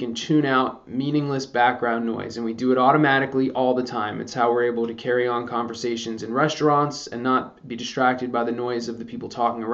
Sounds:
speech

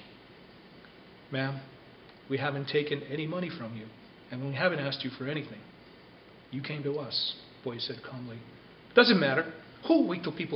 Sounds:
inside a small room, speech

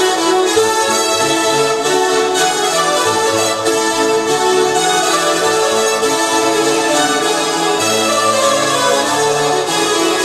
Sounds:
music

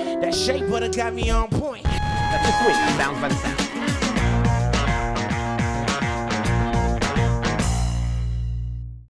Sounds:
speech, music

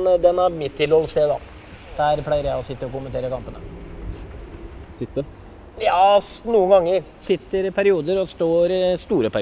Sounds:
speech

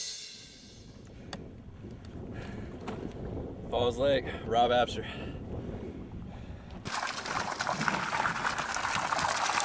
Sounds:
outside, rural or natural, speech, music

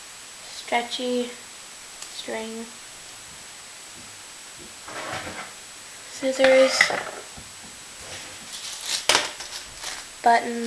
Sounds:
speech

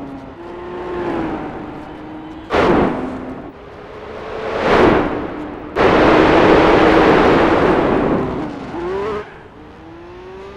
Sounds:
motor vehicle (road), car, vehicle

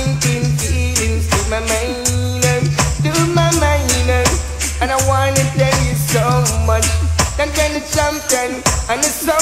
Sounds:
music

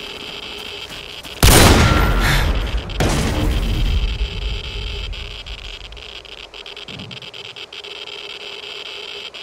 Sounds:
outside, rural or natural

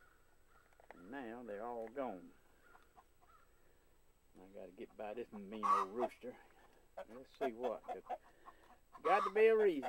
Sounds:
cluck, rooster, fowl

